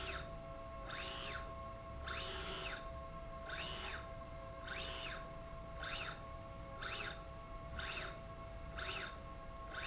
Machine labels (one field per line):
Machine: slide rail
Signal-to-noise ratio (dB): 6 dB